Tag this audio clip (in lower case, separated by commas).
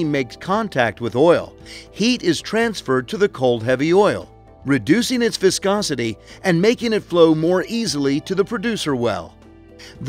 music, speech